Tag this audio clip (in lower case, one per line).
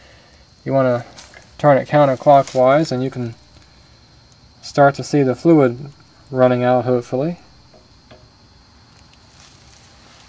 vehicle